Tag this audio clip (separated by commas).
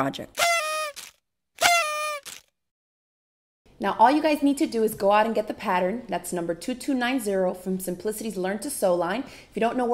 Speech